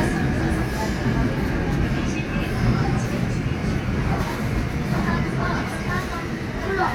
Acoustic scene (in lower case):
subway train